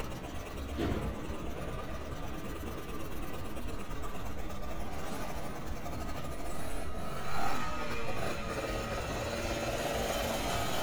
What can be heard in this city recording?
medium-sounding engine